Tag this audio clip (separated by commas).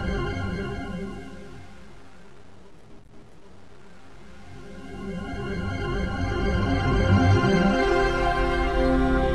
Music